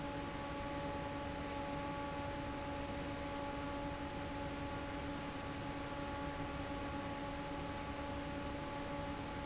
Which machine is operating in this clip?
fan